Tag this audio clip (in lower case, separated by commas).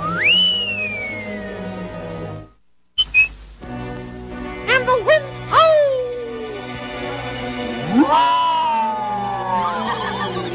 speech, music